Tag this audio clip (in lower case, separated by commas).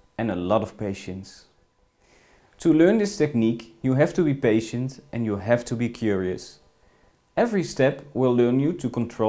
speech